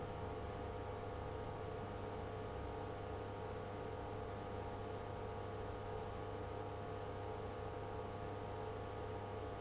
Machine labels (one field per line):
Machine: pump